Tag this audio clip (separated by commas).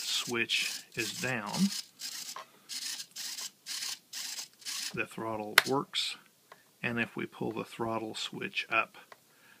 Speech, inside a small room